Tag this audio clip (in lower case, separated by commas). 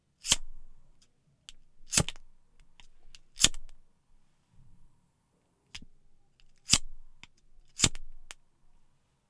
fire